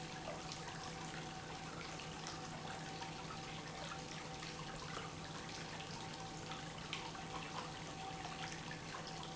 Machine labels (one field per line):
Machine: pump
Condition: normal